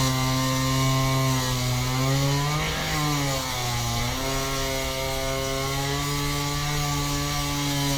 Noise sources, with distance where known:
chainsaw, near

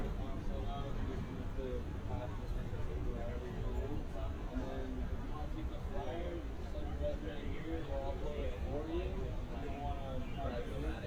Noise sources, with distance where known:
person or small group talking, near

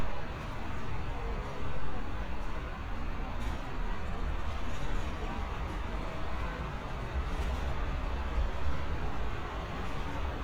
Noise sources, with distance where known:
engine of unclear size, far

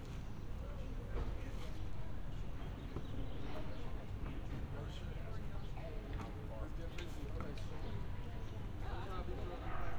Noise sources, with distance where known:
person or small group talking

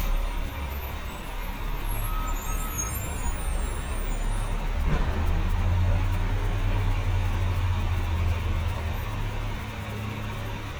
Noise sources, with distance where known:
large-sounding engine, near

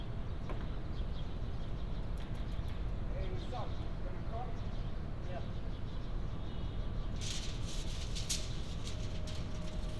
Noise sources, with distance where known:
non-machinery impact; person or small group talking, far

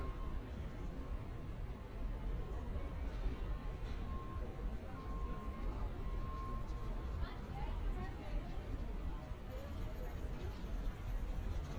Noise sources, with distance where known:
reverse beeper, far; person or small group talking, far

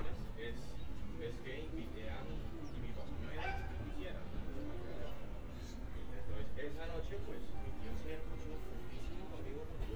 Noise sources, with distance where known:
person or small group talking, near; dog barking or whining

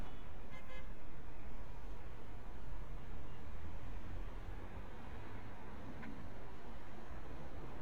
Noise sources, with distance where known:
background noise

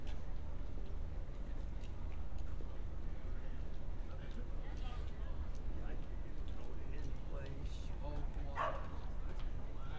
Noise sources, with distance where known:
person or small group talking, far; dog barking or whining

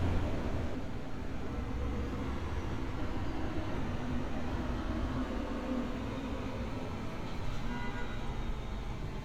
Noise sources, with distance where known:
car horn

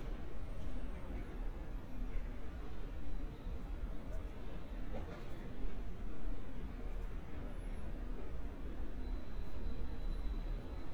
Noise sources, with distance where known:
background noise

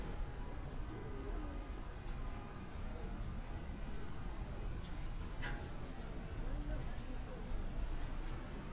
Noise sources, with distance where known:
background noise

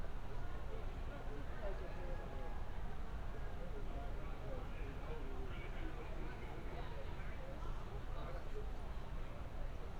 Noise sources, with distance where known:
person or small group talking, far

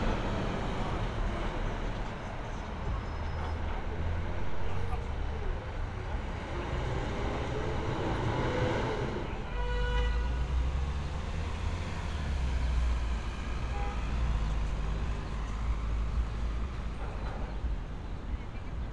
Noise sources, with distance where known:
engine of unclear size, near

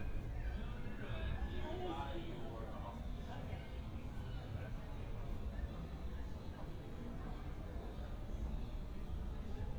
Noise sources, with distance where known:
background noise

